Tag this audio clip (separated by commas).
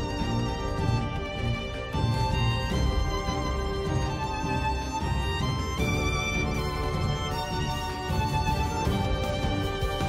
Music, Theme music